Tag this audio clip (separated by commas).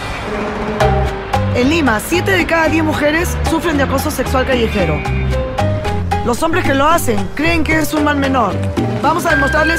Speech, Music